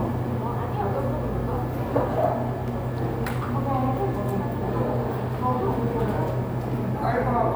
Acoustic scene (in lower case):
cafe